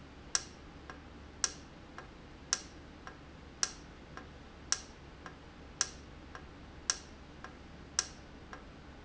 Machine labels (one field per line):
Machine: valve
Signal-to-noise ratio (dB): 6 dB